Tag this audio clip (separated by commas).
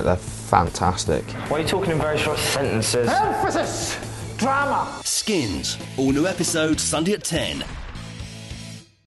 Music, Speech